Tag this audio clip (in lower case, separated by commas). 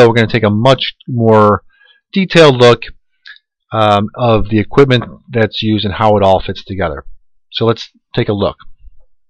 speech